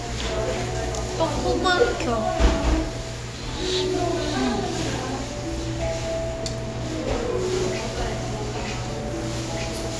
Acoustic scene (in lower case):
cafe